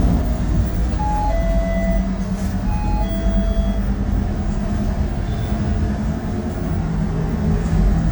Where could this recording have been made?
on a bus